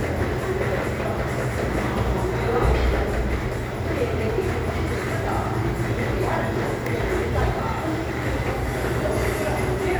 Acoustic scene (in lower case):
crowded indoor space